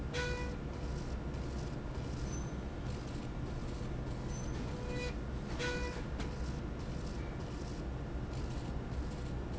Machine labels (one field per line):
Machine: slide rail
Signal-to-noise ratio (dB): -6 dB